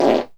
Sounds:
Fart

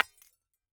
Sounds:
Shatter, Glass

